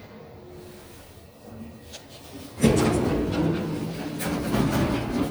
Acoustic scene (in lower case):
elevator